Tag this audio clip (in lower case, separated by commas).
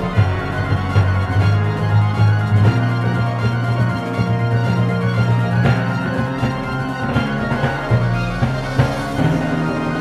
timpani, percussion, musical instrument, music, drum kit, drum